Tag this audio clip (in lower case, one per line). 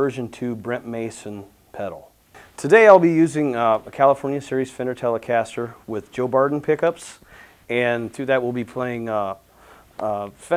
speech